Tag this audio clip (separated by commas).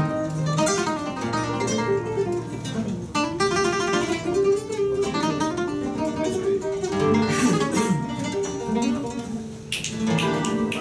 Music, Flamenco, Music of Latin America